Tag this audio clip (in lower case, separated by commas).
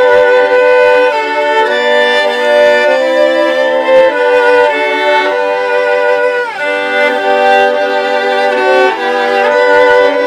bowed string instrument, fiddle, musical instrument, music